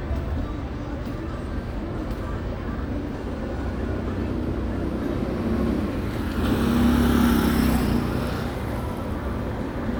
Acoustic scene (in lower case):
street